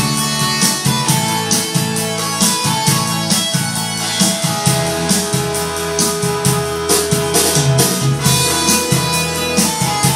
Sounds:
Accordion, Musical instrument

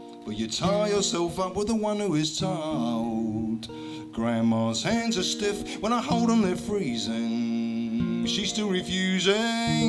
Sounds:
Music

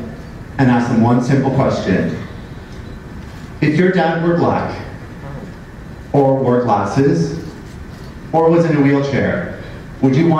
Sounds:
Speech, Narration, Male speech

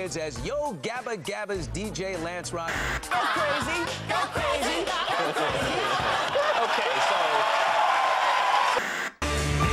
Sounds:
Music, Speech

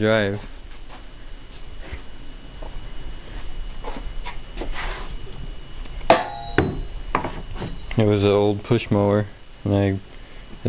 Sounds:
Tools

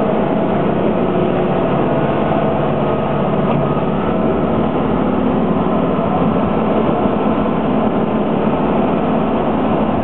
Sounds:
Vehicle

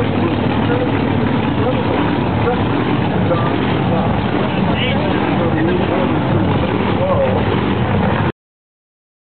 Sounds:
Speech, Car, Vehicle

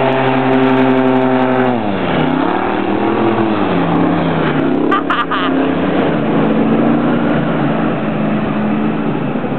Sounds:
Water vehicle, Vehicle, speedboat, motorboat

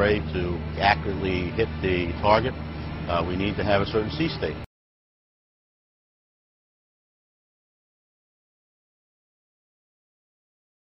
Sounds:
Music, Speech

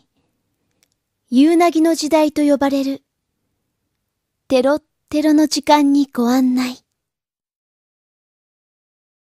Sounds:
Speech

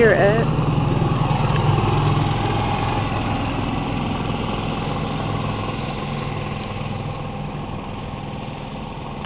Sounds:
Speech, Vehicle

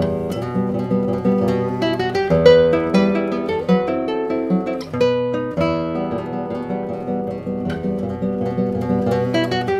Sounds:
Plucked string instrument, Musical instrument, Music, Guitar, Strum

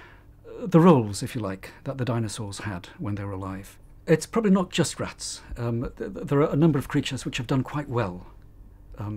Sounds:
Speech

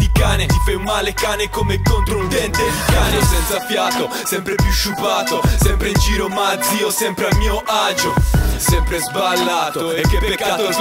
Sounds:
Rapping, Music

